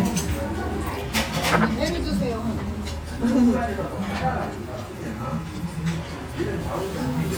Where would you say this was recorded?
in a restaurant